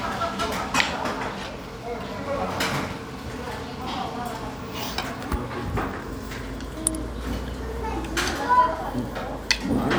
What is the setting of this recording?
crowded indoor space